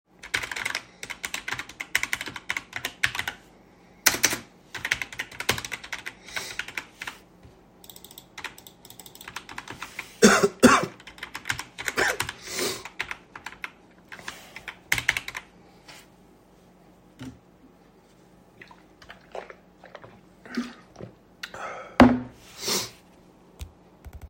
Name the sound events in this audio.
keyboard typing